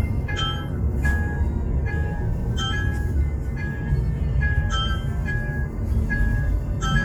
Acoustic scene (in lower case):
car